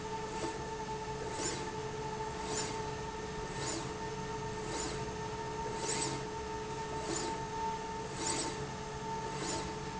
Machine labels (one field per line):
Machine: slide rail